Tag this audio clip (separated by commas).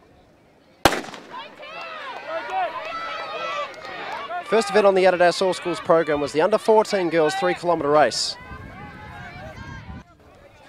outside, urban or man-made, Speech